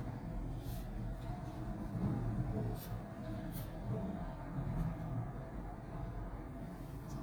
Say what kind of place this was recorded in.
elevator